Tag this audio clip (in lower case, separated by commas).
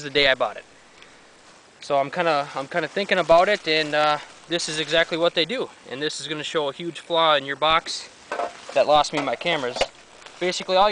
speech